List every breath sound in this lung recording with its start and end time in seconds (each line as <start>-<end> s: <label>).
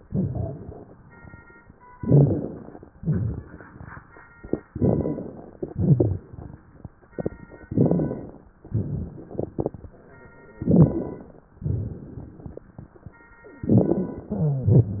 0.00-0.97 s: exhalation
1.95-2.92 s: inhalation
1.97-2.71 s: crackles
2.98-3.47 s: rhonchi
2.98-3.95 s: exhalation
4.69-5.43 s: crackles
4.71-5.58 s: inhalation
5.69-6.26 s: exhalation
5.69-6.26 s: rhonchi
7.68-8.54 s: inhalation
7.68-8.54 s: crackles
8.73-9.58 s: exhalation
8.73-9.58 s: crackles
10.62-11.48 s: inhalation
10.62-11.48 s: crackles
11.61-12.68 s: exhalation
11.61-12.68 s: crackles
13.60-14.35 s: inhalation
13.60-14.35 s: crackles